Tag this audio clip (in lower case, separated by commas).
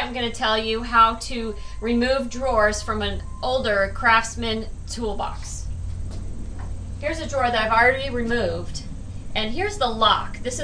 opening or closing drawers